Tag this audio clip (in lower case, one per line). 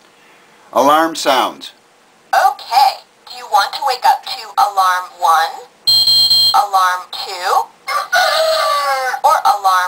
speech